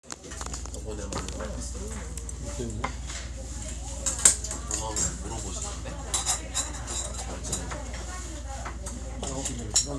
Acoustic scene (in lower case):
restaurant